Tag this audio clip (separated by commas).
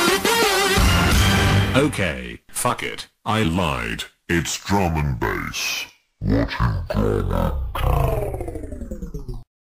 Speech, Music